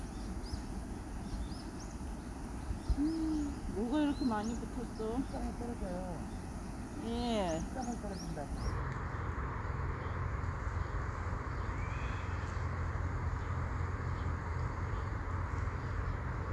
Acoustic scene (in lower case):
park